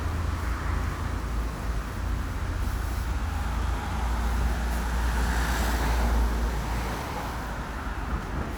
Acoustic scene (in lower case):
street